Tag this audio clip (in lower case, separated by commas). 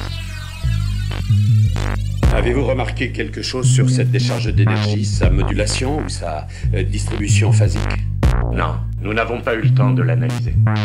speech, music, techno